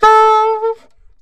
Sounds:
woodwind instrument, music, musical instrument

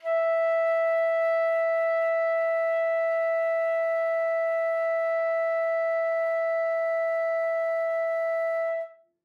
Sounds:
wind instrument, music, musical instrument

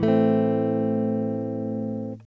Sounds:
plucked string instrument, strum, musical instrument, electric guitar, music, guitar

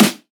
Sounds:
drum, snare drum, percussion, music, musical instrument

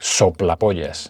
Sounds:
man speaking, speech, human voice

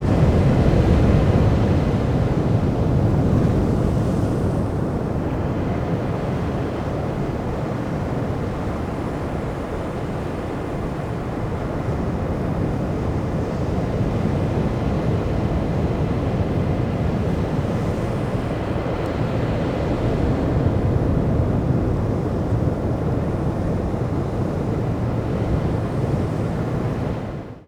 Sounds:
waves, water, ocean

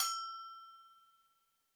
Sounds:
bell

